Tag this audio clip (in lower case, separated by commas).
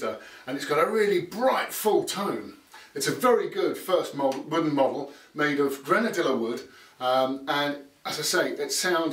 speech